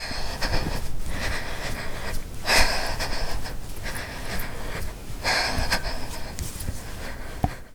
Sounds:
Respiratory sounds, Breathing

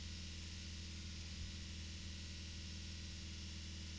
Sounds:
Motor vehicle (road), Vehicle, Car

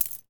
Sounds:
Coin (dropping), Domestic sounds

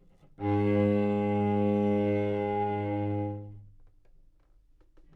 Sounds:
Musical instrument, Music, Bowed string instrument

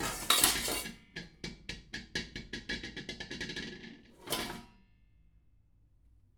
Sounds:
dishes, pots and pans, Domestic sounds

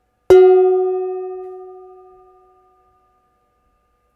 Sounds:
dishes, pots and pans, Domestic sounds

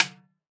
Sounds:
Music, Musical instrument, Percussion, Drum, Snare drum

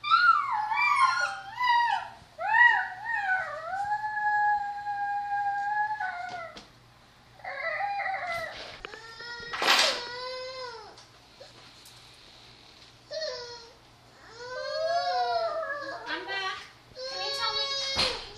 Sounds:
Animal, Dog, Domestic animals

